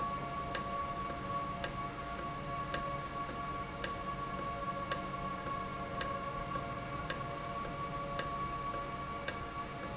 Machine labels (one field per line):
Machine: valve